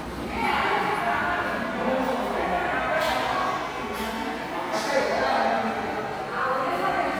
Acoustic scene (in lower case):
subway station